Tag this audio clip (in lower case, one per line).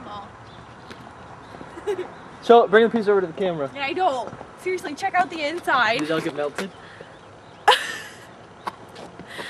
speech